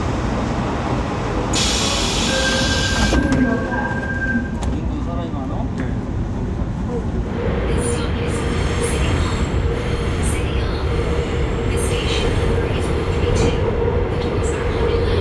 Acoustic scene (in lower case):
subway train